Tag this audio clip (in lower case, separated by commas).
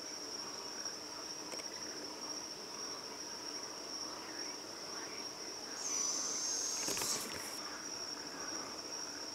owl hooting